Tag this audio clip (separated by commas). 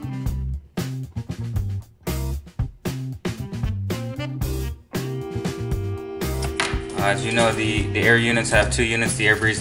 Music, Speech